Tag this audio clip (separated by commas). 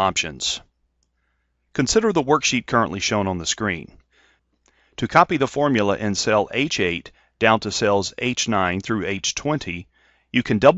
Speech